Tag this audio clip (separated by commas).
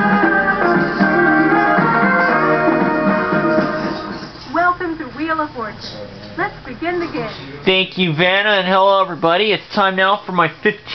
Speech, Music